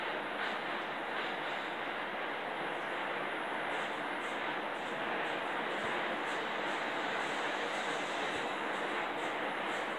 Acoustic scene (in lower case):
elevator